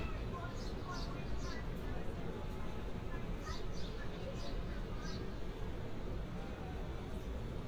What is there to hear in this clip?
person or small group talking